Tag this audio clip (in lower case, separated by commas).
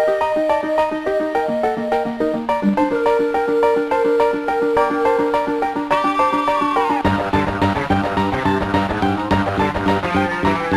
music, video game music